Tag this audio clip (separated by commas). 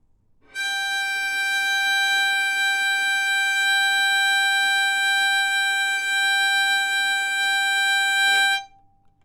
Musical instrument, Bowed string instrument, Music